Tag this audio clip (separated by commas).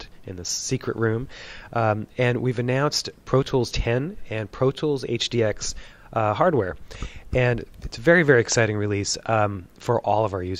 Speech